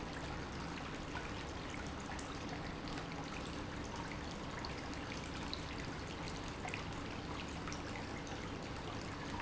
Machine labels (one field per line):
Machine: pump